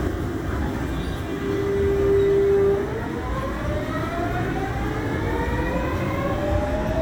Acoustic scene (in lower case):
subway train